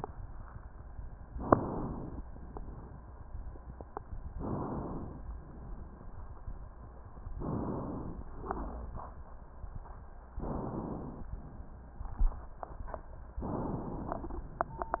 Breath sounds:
1.31-2.22 s: inhalation
2.24-3.14 s: exhalation
4.34-5.25 s: inhalation
5.27-6.36 s: exhalation
7.37-8.28 s: inhalation
8.33-9.43 s: exhalation
10.39-11.30 s: inhalation
11.33-12.61 s: exhalation
13.45-14.48 s: inhalation

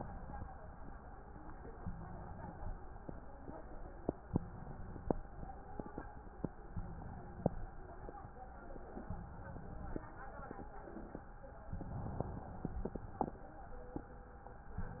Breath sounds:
1.73-2.74 s: inhalation
4.19-5.20 s: inhalation
6.73-7.73 s: inhalation
9.03-10.04 s: inhalation
11.72-12.72 s: inhalation
14.79-15.00 s: inhalation

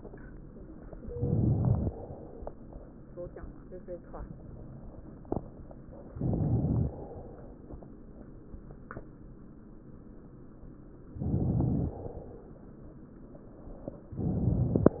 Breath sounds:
1.09-1.88 s: inhalation
1.90-2.60 s: exhalation
6.17-6.96 s: inhalation
6.96-7.64 s: exhalation
11.17-11.96 s: inhalation
11.97-12.73 s: exhalation

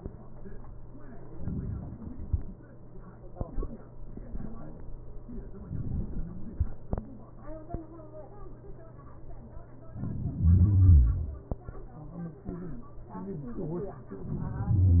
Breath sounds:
9.94-10.53 s: inhalation
10.36-10.95 s: exhalation
10.36-10.95 s: crackles
14.13-14.72 s: inhalation
14.68-15.00 s: exhalation
14.68-15.00 s: crackles

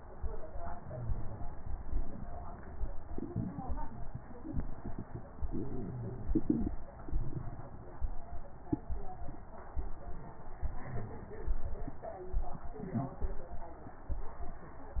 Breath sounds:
0.53-1.47 s: inhalation
10.64-11.93 s: inhalation

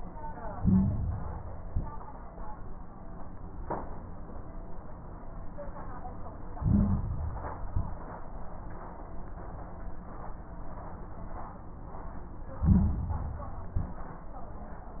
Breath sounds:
0.51-1.52 s: inhalation
0.51-1.52 s: crackles
1.54-2.07 s: exhalation
1.54-2.07 s: crackles
6.55-7.56 s: inhalation
6.55-7.56 s: crackles
7.64-8.17 s: exhalation
7.64-8.17 s: crackles
12.56-13.57 s: inhalation
12.56-13.57 s: crackles
13.64-14.17 s: exhalation
13.64-14.17 s: crackles

